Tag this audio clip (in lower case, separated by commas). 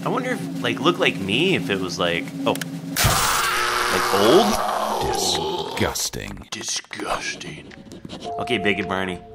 speech, inside a small room, music